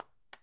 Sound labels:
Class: object falling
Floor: carpet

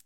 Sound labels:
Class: switch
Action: being turned on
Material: plastic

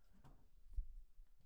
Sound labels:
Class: cupboard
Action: opening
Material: fibreboard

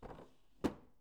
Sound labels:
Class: drawer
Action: closing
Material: wooden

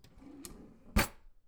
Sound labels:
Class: drawer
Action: opening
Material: wooden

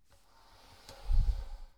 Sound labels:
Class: furniture moving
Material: wooden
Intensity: low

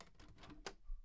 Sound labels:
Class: window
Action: opening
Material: wooden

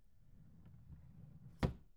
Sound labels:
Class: drawer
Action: closing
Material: wooden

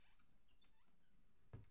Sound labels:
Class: cupboard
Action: closing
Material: wooden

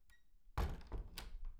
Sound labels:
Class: cupboard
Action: closing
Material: wooden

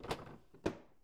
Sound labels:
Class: drawer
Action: closing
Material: wooden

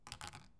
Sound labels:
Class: object falling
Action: being thrown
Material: plastic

